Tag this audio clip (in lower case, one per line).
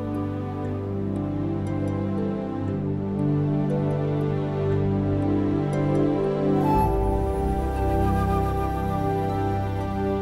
music